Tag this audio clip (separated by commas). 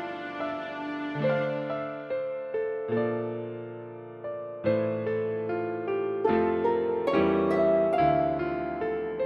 Music, Pop music, New-age music